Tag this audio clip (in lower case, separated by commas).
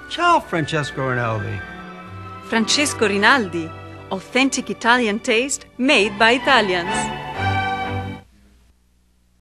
music, speech